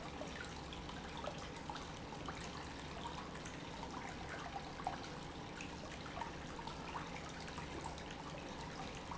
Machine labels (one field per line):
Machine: pump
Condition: normal